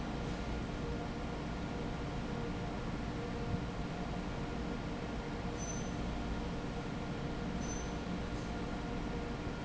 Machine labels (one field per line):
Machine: fan